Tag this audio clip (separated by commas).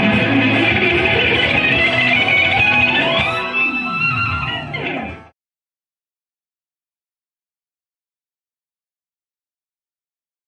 Guitar, Music, Plucked string instrument, Musical instrument